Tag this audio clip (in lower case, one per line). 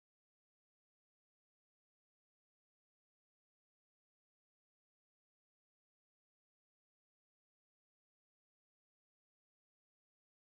opening or closing car doors